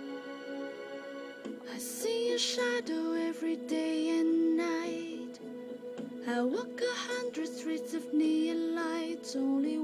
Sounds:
female singing
music

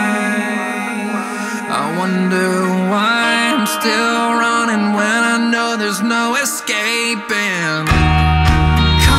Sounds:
music
theme music

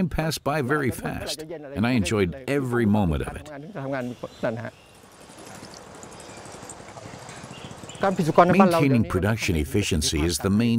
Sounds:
speech

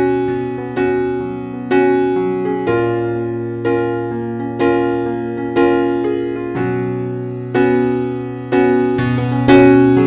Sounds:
music

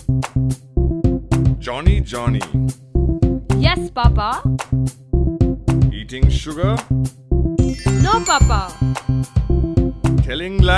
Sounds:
music for children
kid speaking

